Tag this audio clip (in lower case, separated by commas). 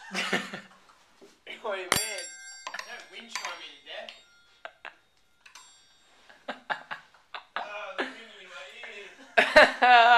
inside a large room or hall, chink, speech